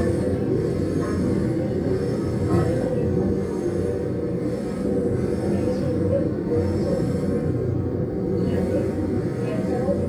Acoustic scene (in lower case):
subway train